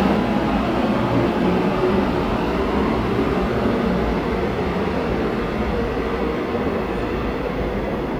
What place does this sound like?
subway station